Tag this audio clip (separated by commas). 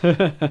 Human voice, Laughter